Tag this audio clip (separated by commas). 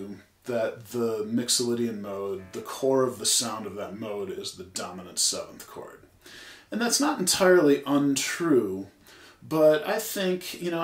Speech